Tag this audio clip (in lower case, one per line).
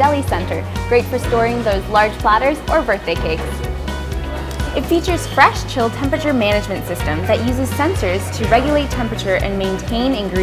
speech
music